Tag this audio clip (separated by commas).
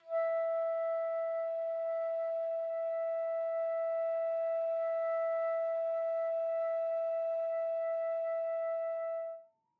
Musical instrument, Music, woodwind instrument